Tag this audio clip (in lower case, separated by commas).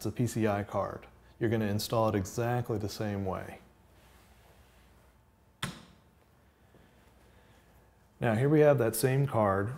speech